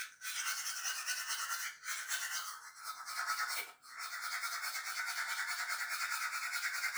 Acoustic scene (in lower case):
restroom